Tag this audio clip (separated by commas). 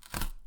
Tearing